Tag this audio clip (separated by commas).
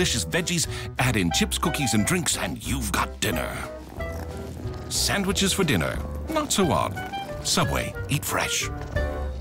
Speech, Music